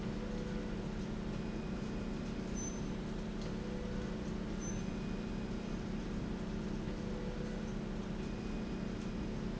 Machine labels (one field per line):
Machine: slide rail